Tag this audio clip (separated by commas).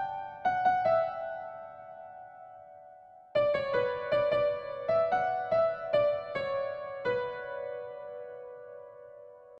Music